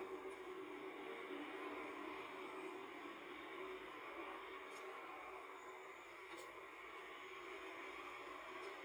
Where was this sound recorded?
in a car